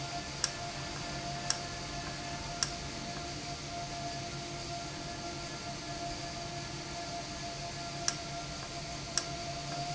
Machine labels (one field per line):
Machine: valve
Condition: normal